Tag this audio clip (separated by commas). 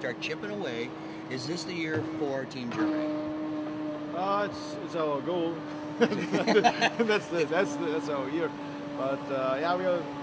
Speech, inside a large room or hall